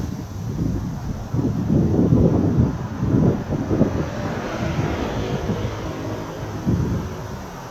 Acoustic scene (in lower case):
street